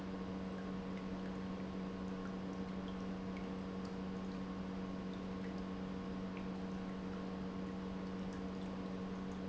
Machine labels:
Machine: pump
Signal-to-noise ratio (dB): 6 dB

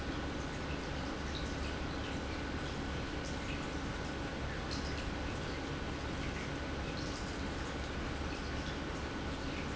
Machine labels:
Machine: pump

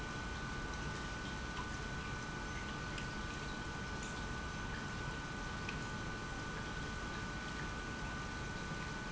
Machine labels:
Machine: pump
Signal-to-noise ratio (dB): 0 dB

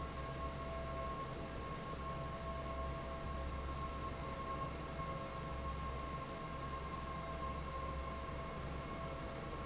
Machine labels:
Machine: fan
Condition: normal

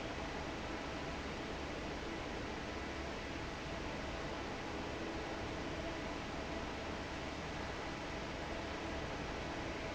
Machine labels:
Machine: fan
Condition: normal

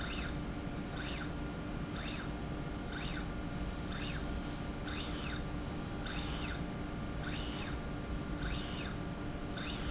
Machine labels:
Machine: slide rail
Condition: normal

